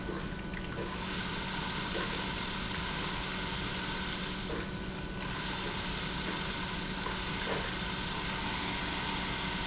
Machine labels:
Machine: pump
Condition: abnormal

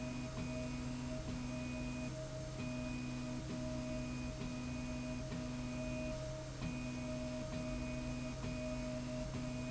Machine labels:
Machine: slide rail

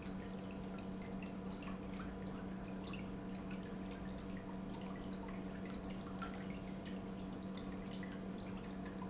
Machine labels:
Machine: pump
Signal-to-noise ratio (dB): 6 dB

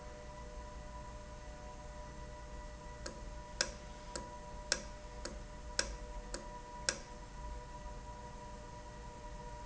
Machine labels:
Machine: valve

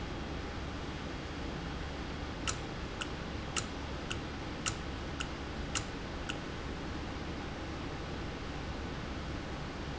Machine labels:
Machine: valve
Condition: normal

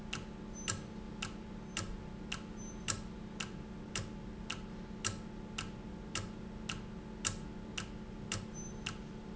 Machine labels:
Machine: valve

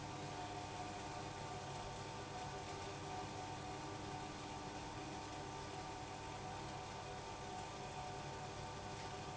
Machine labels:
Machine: pump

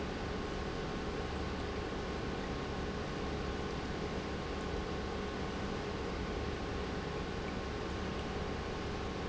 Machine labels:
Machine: pump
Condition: normal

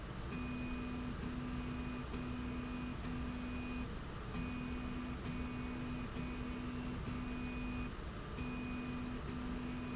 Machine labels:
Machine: slide rail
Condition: normal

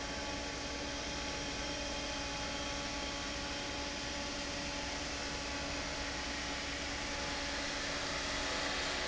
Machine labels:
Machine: fan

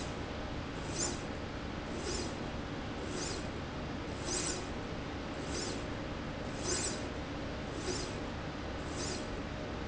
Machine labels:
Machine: slide rail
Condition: normal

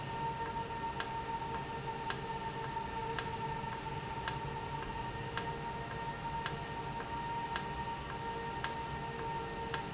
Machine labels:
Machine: valve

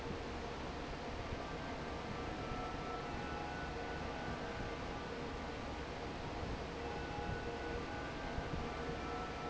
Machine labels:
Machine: fan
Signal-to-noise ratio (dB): 0 dB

